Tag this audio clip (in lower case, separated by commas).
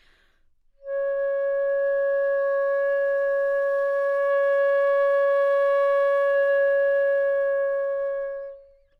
wind instrument, music, musical instrument